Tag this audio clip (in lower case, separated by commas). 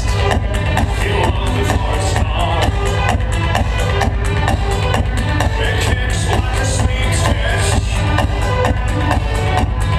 electronic music, music, techno